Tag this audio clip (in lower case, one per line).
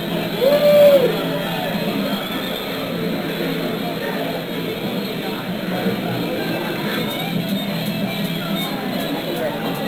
musical instrument
speech
plucked string instrument
guitar
music